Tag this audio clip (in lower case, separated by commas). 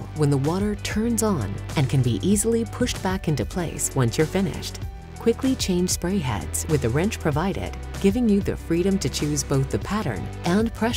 speech, music